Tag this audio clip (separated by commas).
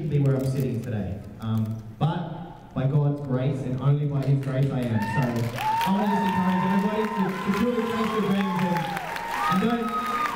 man speaking, Speech